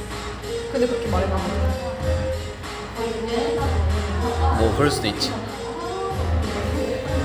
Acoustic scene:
cafe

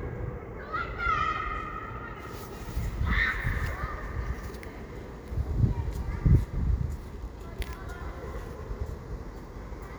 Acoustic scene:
residential area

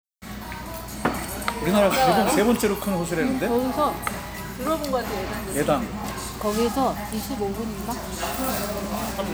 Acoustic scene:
restaurant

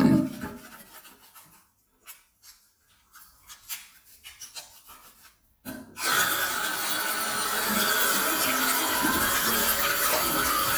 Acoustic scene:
restroom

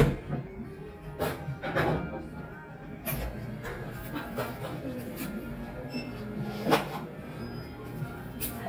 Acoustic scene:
cafe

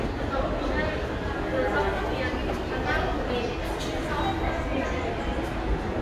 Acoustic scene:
subway station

